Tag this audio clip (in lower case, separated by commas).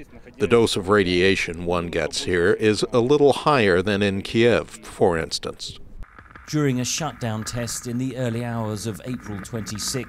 speech